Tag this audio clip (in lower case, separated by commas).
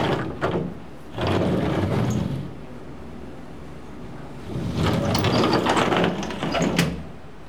sliding door, door, domestic sounds